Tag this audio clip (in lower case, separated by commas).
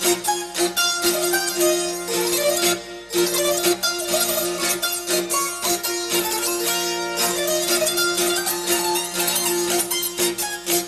musical instrument, music